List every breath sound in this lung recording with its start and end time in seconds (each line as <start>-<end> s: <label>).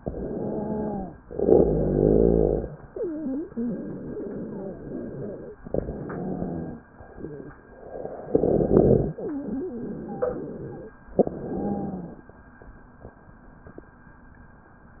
0.00-1.08 s: inhalation
0.00-1.08 s: wheeze
1.27-2.73 s: exhalation
1.27-2.73 s: rhonchi
2.83-5.47 s: wheeze
5.73-6.81 s: inhalation
5.73-6.81 s: wheeze
8.29-9.20 s: exhalation
8.29-10.93 s: wheeze
11.19-12.28 s: inhalation
11.19-12.28 s: wheeze